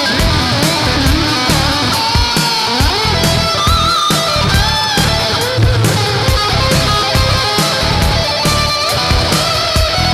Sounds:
guitar, music, musical instrument, electric guitar

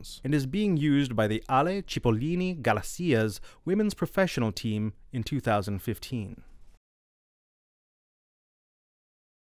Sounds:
speech

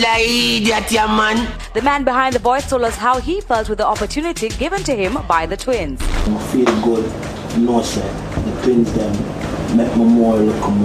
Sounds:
speech, music

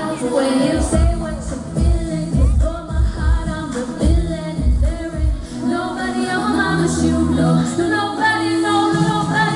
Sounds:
music, female singing

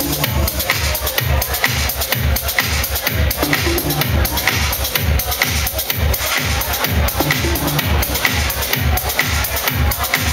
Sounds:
techno, electronic music, music

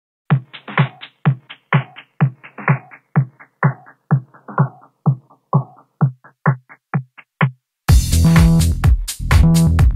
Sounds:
drum machine, sampler

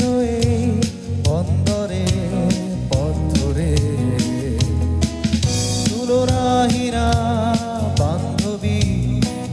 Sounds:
music, tender music, rhythm and blues

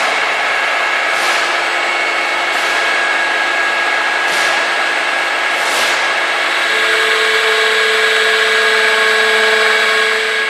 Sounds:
tools

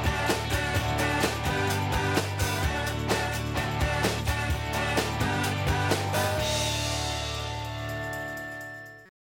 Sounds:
music, theme music

